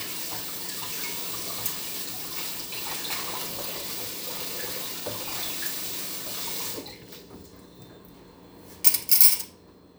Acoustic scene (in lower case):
kitchen